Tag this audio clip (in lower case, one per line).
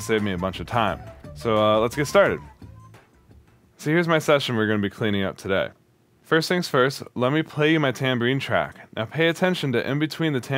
music
speech